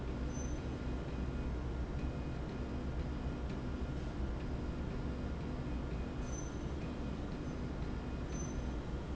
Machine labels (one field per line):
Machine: slide rail